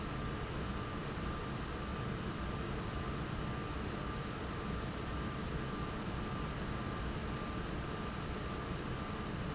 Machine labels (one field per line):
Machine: fan